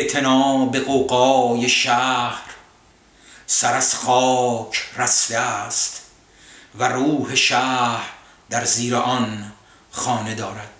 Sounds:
speech, inside a small room

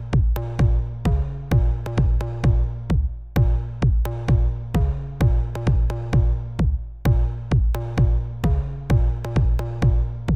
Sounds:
house music, music

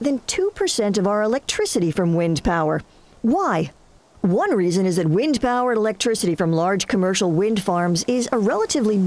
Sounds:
speech

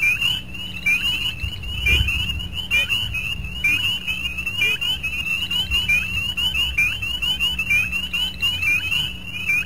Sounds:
animal

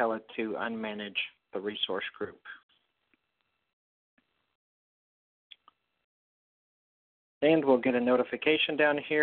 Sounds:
speech

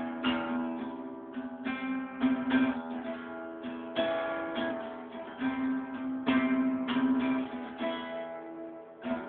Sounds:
acoustic guitar, musical instrument, plucked string instrument, music, guitar, strum, playing acoustic guitar

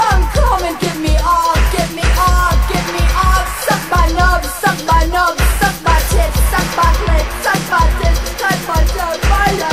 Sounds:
music

